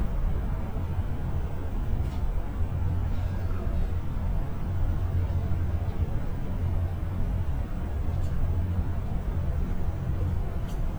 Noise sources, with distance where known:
non-machinery impact, far

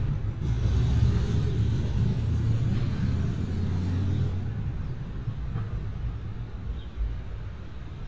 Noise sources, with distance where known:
medium-sounding engine

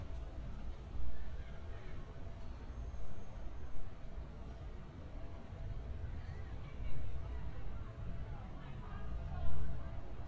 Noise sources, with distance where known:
large-sounding engine; person or small group talking; person or small group shouting

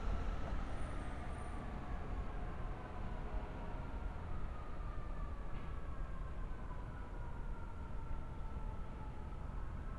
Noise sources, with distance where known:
siren, far

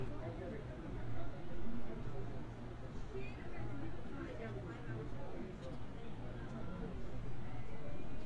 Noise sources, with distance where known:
person or small group talking, far

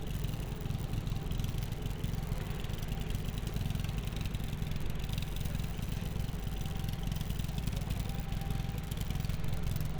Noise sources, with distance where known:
engine of unclear size, near

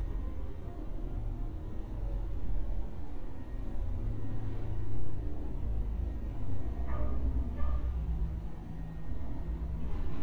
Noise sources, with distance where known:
dog barking or whining

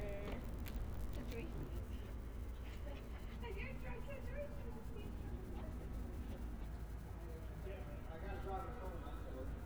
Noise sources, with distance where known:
person or small group talking, near

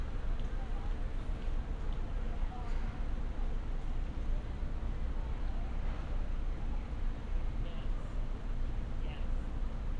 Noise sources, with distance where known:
person or small group talking, far

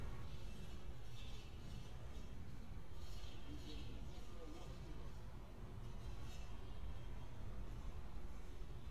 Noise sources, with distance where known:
non-machinery impact; person or small group talking, near

